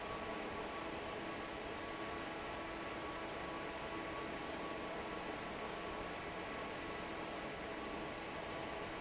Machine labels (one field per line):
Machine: fan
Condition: normal